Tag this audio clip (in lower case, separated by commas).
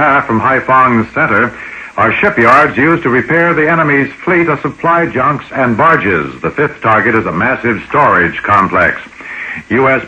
radio, speech